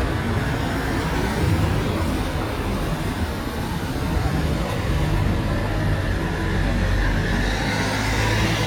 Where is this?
on a street